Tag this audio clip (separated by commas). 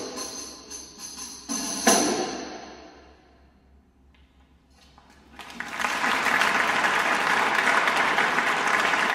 Percussion